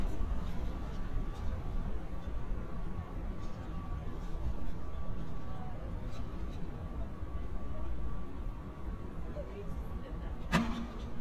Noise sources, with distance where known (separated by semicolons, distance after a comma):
engine of unclear size; unidentified human voice